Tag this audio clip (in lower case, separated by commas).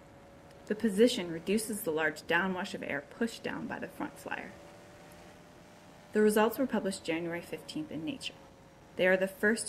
bird wings flapping